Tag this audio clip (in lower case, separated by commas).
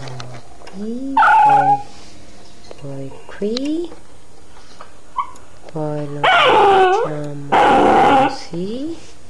speech